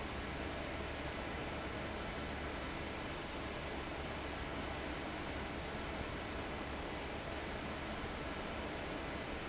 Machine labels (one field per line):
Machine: fan